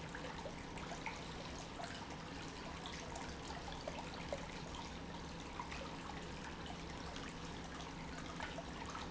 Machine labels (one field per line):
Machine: pump